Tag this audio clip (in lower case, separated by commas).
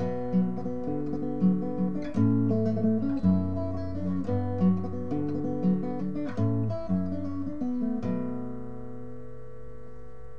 musical instrument, music, plucked string instrument, guitar